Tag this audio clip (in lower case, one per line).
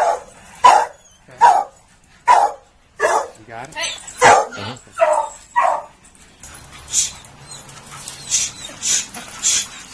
dog baying